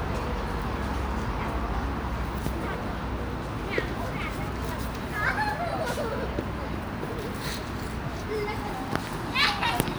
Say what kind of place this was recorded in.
park